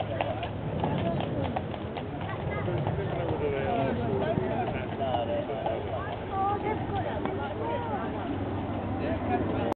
A horse trots as multiple people speak